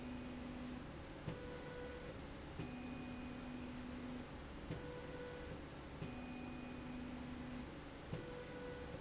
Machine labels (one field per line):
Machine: slide rail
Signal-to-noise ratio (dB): 6 dB